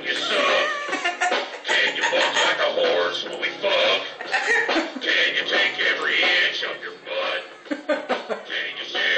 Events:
[0.00, 0.78] male singing
[0.00, 9.15] mechanisms
[0.00, 9.15] music
[0.20, 1.07] meow
[0.88, 3.08] laughter
[1.62, 3.99] male singing
[4.17, 5.05] laughter
[5.04, 7.38] male singing
[7.64, 8.47] laughter
[8.45, 9.15] male singing

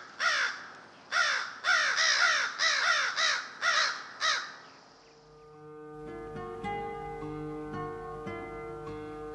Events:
[0.00, 9.34] background noise
[0.17, 0.67] caw
[0.67, 0.82] tick
[0.85, 1.07] bird song
[1.09, 4.53] caw
[4.50, 4.75] bird song
[4.97, 5.56] bird song
[4.99, 9.34] music

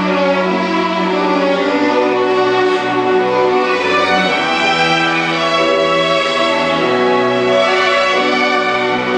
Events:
[0.00, 0.96] music
[0.00, 9.15] mechanisms
[1.52, 1.69] generic impact sounds
[1.88, 2.13] generic impact sounds
[2.78, 2.91] tick
[3.08, 3.37] generic impact sounds
[3.55, 3.86] generic impact sounds
[4.08, 4.22] tick
[4.28, 4.91] surface contact
[5.35, 5.53] generic impact sounds
[5.98, 6.47] generic impact sounds
[6.52, 7.80] human voice
[6.68, 6.91] generic impact sounds
[7.37, 7.50] tick
[7.63, 7.83] generic impact sounds
[8.06, 9.15] music

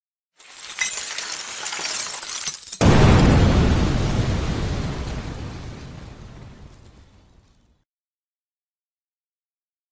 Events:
[0.35, 2.74] shatter
[2.81, 7.79] sound effect

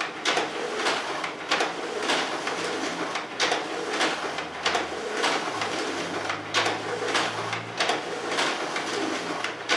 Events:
[0.00, 9.75] mechanisms

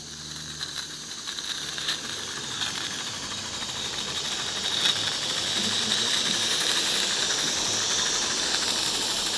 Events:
[0.00, 9.35] clickety-clack
[0.00, 9.35] mechanisms
[0.00, 9.35] steam
[5.49, 6.62] male speech

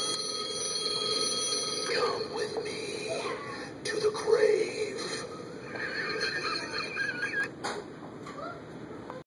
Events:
[0.00, 1.86] telephone bell ringing
[0.00, 9.18] mechanisms
[0.06, 0.14] tick
[1.80, 3.29] whispering
[2.49, 2.61] generic impact sounds
[3.03, 3.66] speech
[3.78, 5.19] whispering
[5.59, 7.43] laughter
[6.48, 6.75] speech
[7.35, 7.42] generic impact sounds
[7.57, 7.78] generic impact sounds
[7.93, 8.02] generic impact sounds
[8.20, 8.56] speech
[8.84, 9.19] speech
[9.04, 9.14] tick

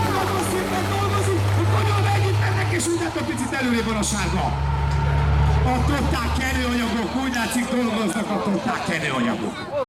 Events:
[0.00, 1.39] male speech
[0.00, 1.60] applause
[0.00, 3.15] revving
[0.00, 9.53] truck
[1.58, 4.51] male speech
[3.85, 3.95] tick
[3.93, 6.93] revving
[4.88, 5.00] tick
[5.64, 9.78] male speech
[7.30, 7.43] tick
[9.51, 9.85] human voice

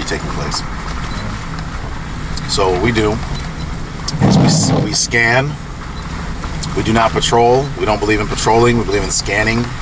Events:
[0.00, 0.62] male speech
[0.00, 9.81] medium engine (mid frequency)
[0.84, 1.08] generic impact sounds
[1.07, 1.24] bleep
[1.53, 1.65] tick
[2.34, 2.48] tick
[2.44, 3.29] male speech
[2.72, 3.69] generic impact sounds
[3.31, 3.41] bleep
[3.56, 3.68] bleep
[4.05, 4.93] generic impact sounds
[4.46, 5.55] male speech
[5.94, 6.05] bleep
[6.57, 6.71] tick
[6.72, 7.62] male speech
[7.60, 7.69] bleep
[7.80, 9.81] male speech
[8.88, 8.97] bleep
[9.58, 9.71] tick

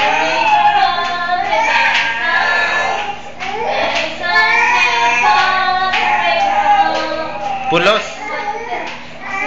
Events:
[0.00, 0.98] infant cry
[0.00, 3.08] female singing
[0.00, 9.45] mechanisms
[0.37, 0.55] generic impact sounds
[0.98, 1.16] generic impact sounds
[1.37, 3.13] infant cry
[1.85, 2.09] generic impact sounds
[2.85, 3.05] generic impact sounds
[3.34, 3.58] generic impact sounds
[3.39, 5.94] female singing
[3.40, 3.97] infant cry
[3.90, 4.04] generic impact sounds
[4.21, 5.61] infant cry
[4.26, 4.40] generic impact sounds
[5.29, 5.46] generic impact sounds
[5.87, 6.08] generic impact sounds
[5.88, 7.30] infant cry
[6.15, 7.43] female singing
[6.32, 6.51] generic impact sounds
[6.87, 7.09] generic impact sounds
[7.31, 7.51] generic impact sounds
[7.67, 8.07] male speech
[8.08, 9.02] infant cry
[8.11, 8.56] female singing
[8.73, 9.00] generic impact sounds
[9.20, 9.45] infant cry

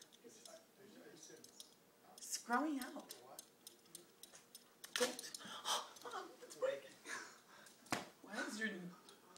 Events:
[0.00, 0.19] generic impact sounds
[0.00, 9.35] mechanisms
[0.00, 9.35] television
[0.19, 1.68] male speech
[0.44, 0.60] generic impact sounds
[1.32, 1.74] generic impact sounds
[2.15, 2.21] generic impact sounds
[2.17, 8.94] conversation
[2.17, 3.04] female speech
[2.50, 2.59] generic impact sounds
[2.79, 3.22] generic impact sounds
[3.36, 3.52] generic impact sounds
[3.64, 4.04] generic impact sounds
[4.22, 4.63] generic impact sounds
[4.82, 5.41] generic impact sounds
[4.94, 5.32] female speech
[5.37, 5.62] breathing
[5.65, 5.89] human sounds
[5.93, 6.03] generic impact sounds
[6.07, 6.86] female speech
[7.04, 7.66] laughter
[7.64, 8.07] generic impact sounds
[8.23, 8.92] female speech
[9.04, 9.12] generic impact sounds

